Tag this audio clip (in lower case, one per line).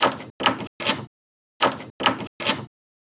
door
domestic sounds